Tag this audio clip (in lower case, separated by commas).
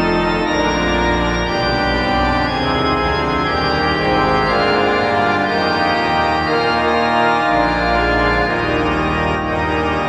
music